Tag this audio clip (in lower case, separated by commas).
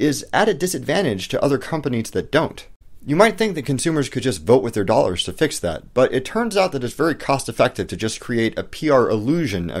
speech